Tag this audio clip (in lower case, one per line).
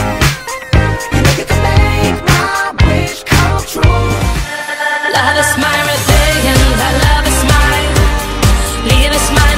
music